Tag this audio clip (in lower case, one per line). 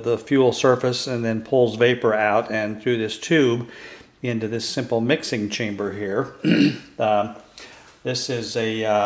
speech